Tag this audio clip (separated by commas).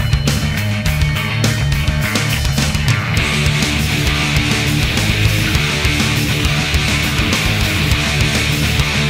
Music